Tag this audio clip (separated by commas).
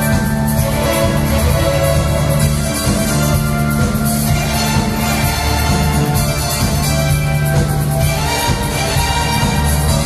Funny music, Music